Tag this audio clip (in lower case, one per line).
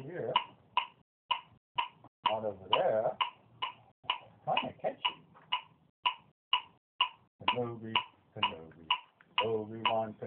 speech